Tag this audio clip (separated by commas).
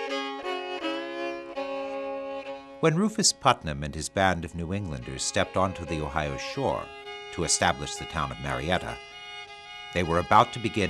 Speech, Music